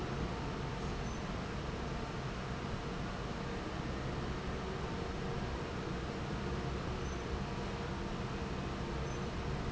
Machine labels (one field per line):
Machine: fan